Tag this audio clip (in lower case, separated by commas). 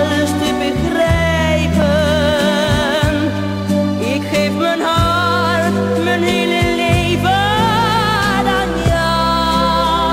music, singing, soul music